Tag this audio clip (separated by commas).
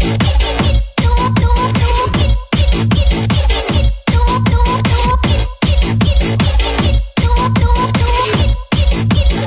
Music